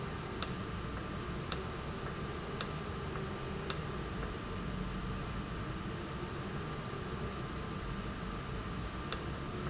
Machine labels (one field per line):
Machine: valve